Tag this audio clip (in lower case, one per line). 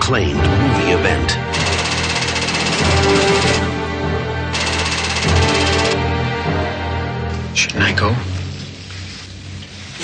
speech
music